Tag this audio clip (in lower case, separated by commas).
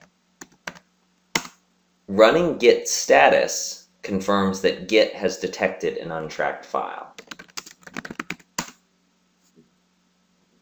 speech